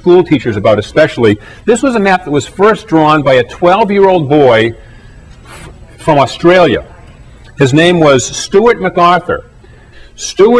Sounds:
speech

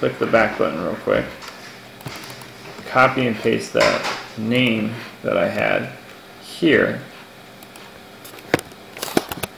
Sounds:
speech

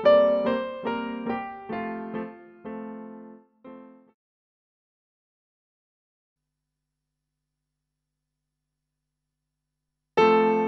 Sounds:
music

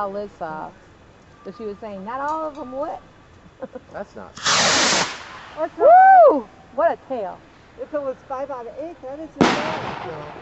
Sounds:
fireworks, speech

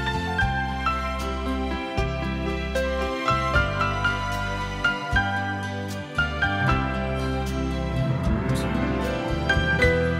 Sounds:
tender music, music

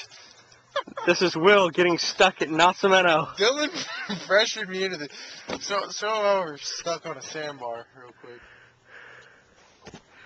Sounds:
speech, laughter

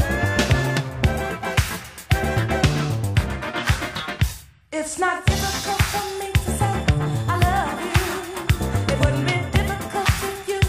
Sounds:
disco, funk, dance music, music

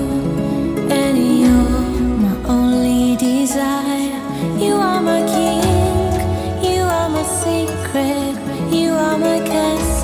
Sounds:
music

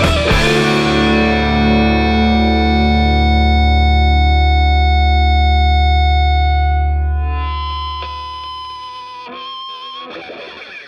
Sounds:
effects unit, distortion, music

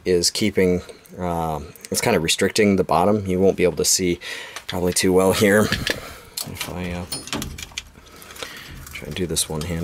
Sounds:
inside a small room, speech

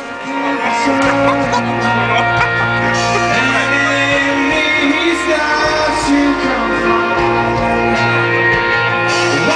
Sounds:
male singing, music

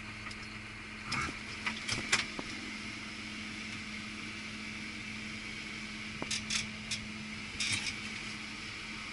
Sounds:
dishes, pots and pans

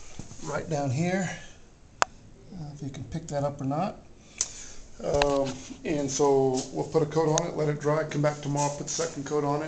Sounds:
speech

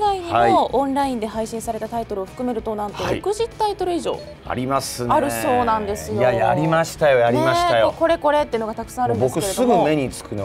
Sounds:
music, speech

